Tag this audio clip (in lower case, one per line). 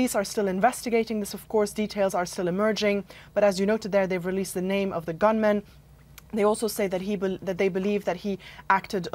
speech